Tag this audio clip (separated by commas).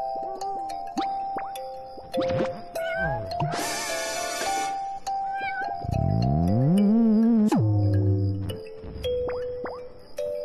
Music